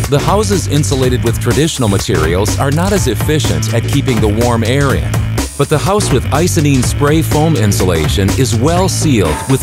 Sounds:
Music, Speech

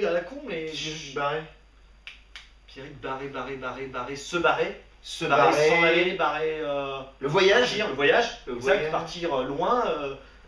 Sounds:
Speech

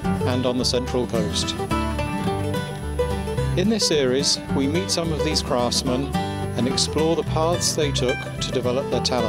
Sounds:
Music, Speech

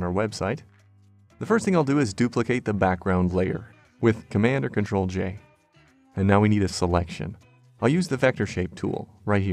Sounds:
Speech, Music

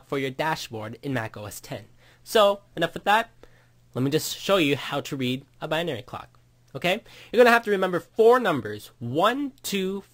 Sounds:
Speech

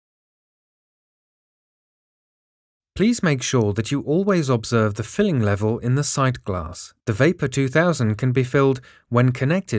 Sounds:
Speech

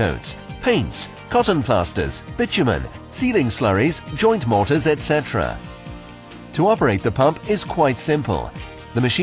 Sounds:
Music, Speech

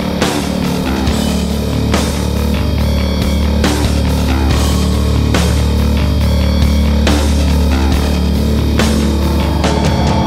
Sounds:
Music, Soundtrack music

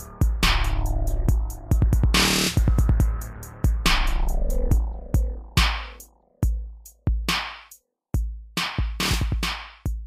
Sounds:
Music, Dubstep, Electronic music, Drum machine

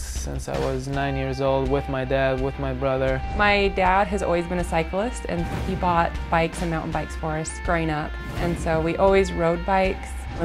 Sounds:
Speech, Music

